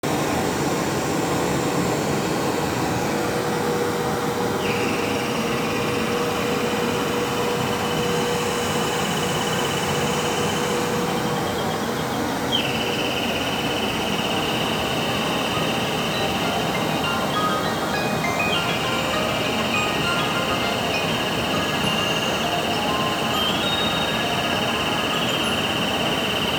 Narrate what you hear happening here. As the vacuum cleaner was running, the doorbell rang and then the phone rang at the same time.